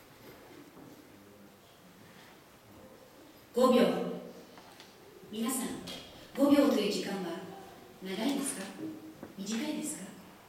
A person giving a speech